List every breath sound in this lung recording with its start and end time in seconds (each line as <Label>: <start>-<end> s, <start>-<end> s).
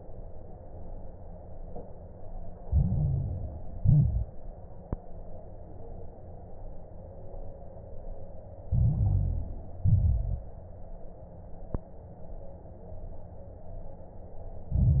Inhalation: 2.64-3.76 s, 8.68-9.80 s, 14.69-15.00 s
Exhalation: 3.76-4.34 s, 9.88-10.46 s
Crackles: 2.64-3.76 s, 3.76-4.34 s, 8.68-9.80 s, 9.88-10.46 s, 14.69-15.00 s